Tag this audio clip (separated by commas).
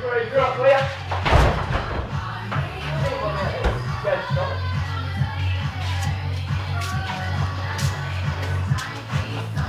Music, Speech